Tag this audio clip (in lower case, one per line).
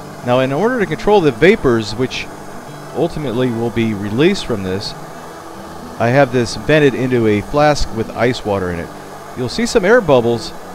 speech